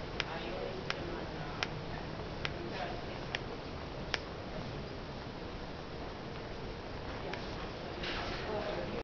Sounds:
speech, crowd

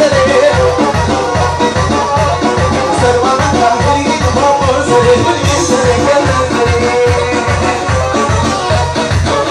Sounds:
funny music, music, jazz, dance music

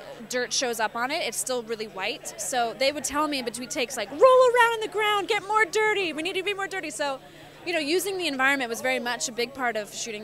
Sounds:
speech

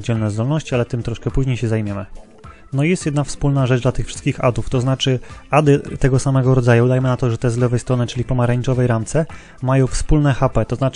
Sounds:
speech, music

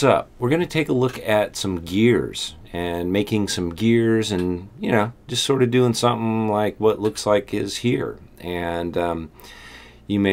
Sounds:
speech

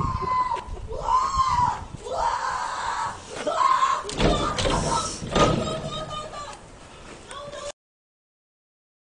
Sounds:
speech

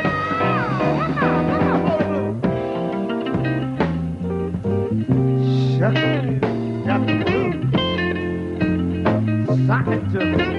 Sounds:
music, singing

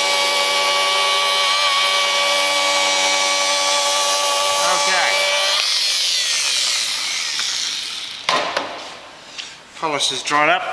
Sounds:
speech

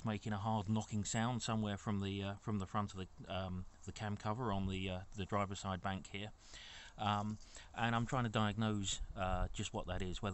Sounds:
speech

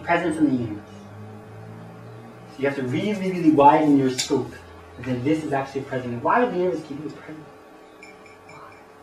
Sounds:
speech

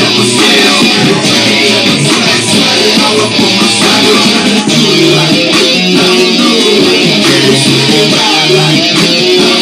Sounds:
strum, musical instrument, music, guitar

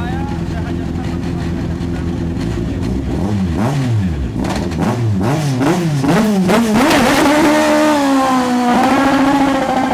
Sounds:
speech

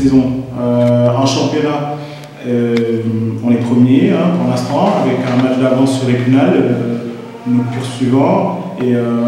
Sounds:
speech

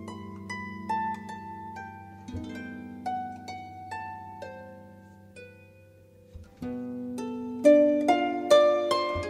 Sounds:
music, playing harp, harp

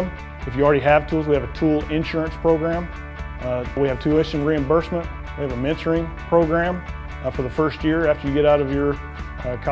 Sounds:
speech, music

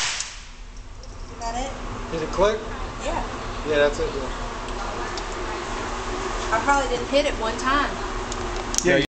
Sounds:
speech

